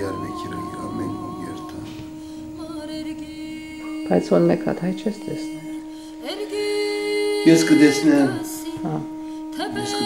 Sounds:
inside a small room, music, speech

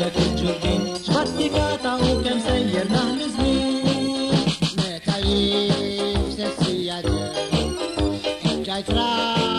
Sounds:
music

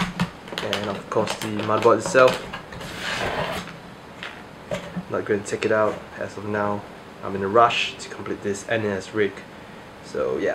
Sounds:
speech, inside a small room

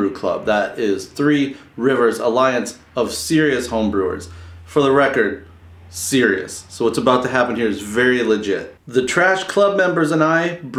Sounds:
speech

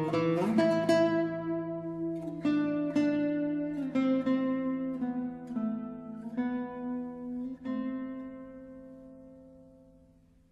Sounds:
music

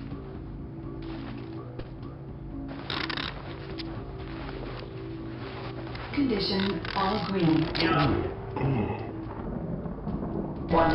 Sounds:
speech, music

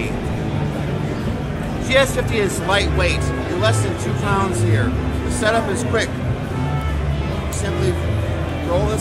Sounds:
music, tender music, speech

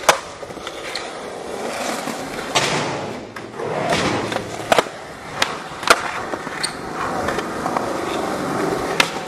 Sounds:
skateboarding, skateboard

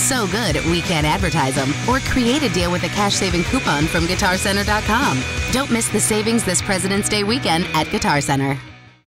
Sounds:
speech, music, guitar, plucked string instrument, electric guitar, musical instrument

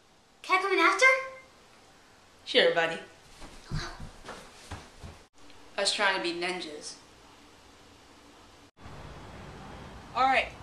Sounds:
speech, kid speaking

